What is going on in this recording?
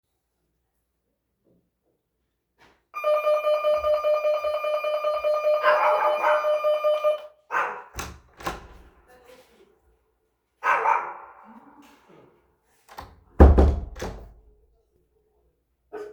The doorbell rang and I opened the door and closed it. My little dog barked.